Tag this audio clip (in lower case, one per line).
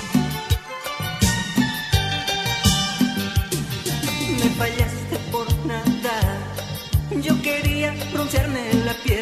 music